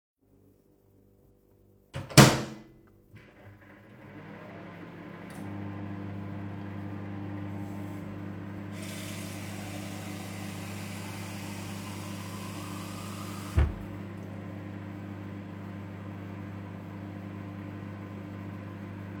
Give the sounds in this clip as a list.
microwave, running water